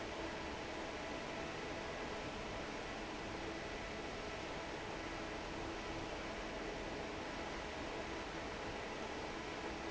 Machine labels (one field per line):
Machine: fan